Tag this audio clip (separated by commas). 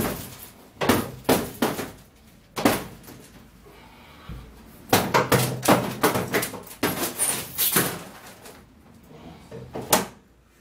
sliding door